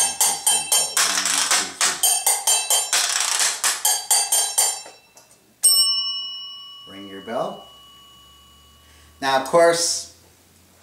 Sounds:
playing washboard

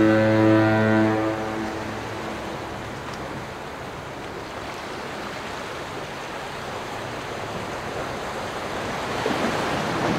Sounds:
white noise

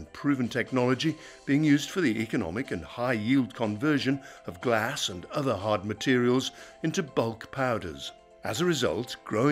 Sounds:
speech, music

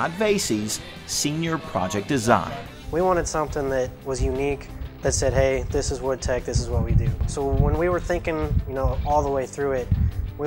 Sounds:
music, speech

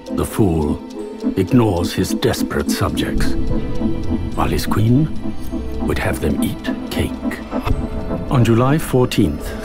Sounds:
music, speech

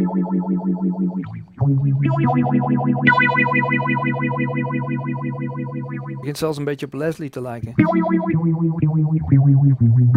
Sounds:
speech, effects unit, guitar, electric guitar, musical instrument, plucked string instrument, music

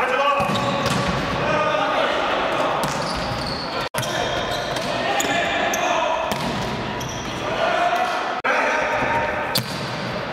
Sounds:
speech, inside a large room or hall

